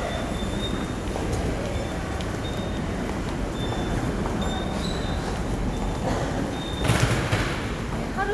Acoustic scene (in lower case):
subway station